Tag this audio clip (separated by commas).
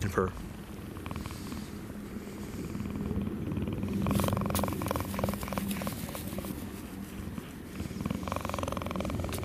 cheetah chirrup